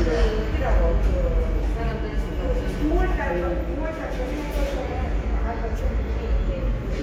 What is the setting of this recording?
subway station